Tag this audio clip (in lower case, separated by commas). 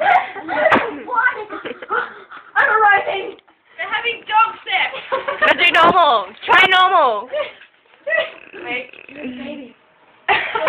speech